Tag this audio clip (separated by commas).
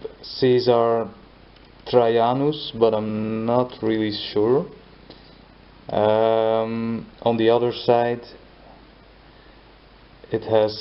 Speech